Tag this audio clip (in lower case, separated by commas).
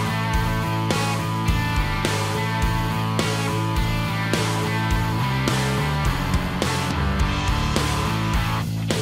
music